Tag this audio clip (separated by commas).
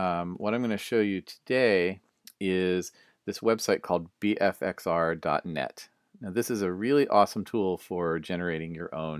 Speech